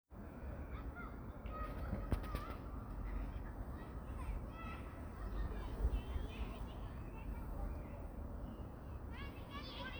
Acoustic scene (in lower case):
park